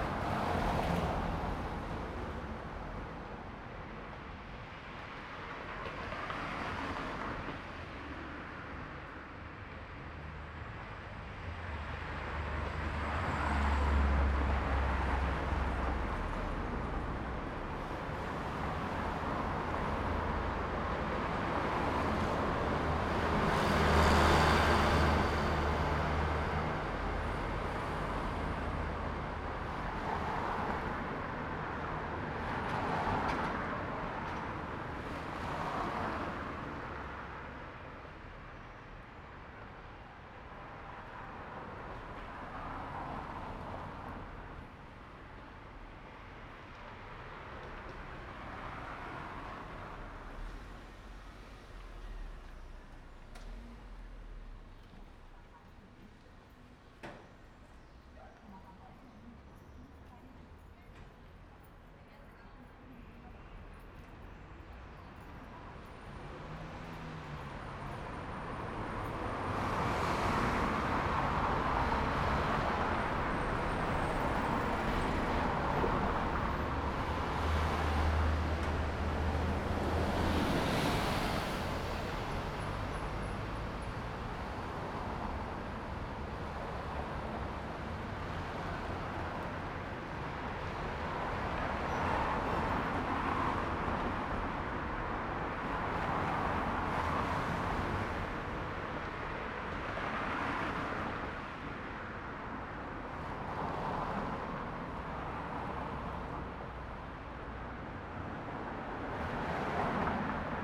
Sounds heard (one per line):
bus
car wheels rolling
car
bus brakes
bus engine accelerating
bus wheels rolling
people talking